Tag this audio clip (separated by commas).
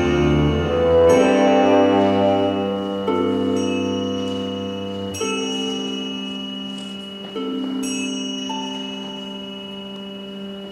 Music, Musical instrument, Opera, Classical music, Orchestra, Tubular bells